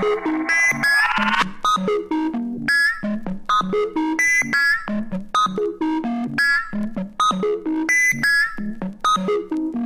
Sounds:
Electronic music, Music

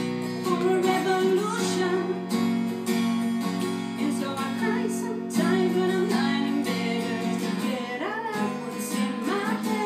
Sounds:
Guitar, Female singing, Plucked string instrument, Musical instrument, Music

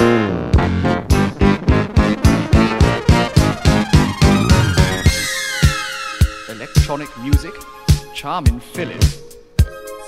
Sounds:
Music, Speech

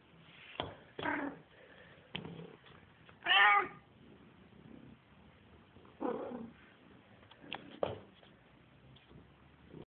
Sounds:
Meow, Cat, Domestic animals

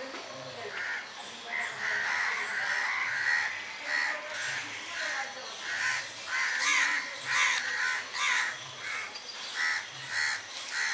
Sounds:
crow cawing

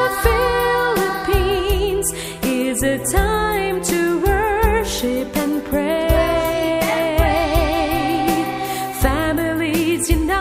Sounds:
Christmas music, Christian music, Music

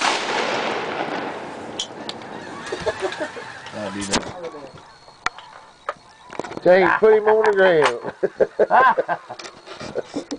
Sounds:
Goose, Fowl, Honk

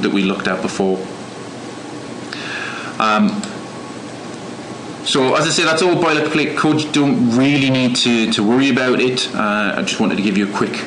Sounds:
Narration, Speech

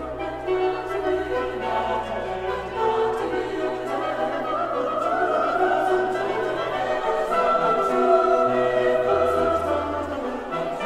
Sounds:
Choir, Orchestra, Singing, Music, Opera, Classical music

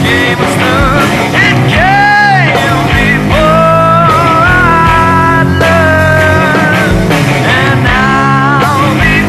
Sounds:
Music

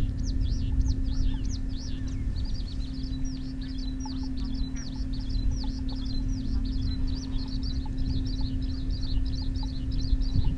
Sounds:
goose honking

